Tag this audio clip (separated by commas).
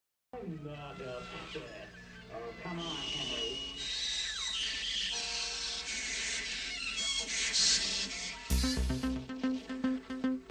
Music, Speech